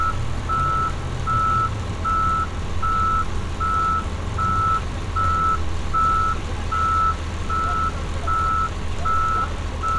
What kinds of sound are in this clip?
large-sounding engine